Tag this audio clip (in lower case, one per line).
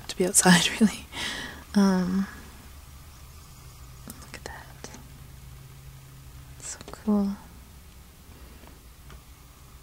speech